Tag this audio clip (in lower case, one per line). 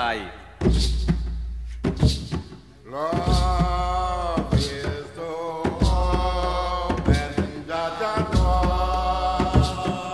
music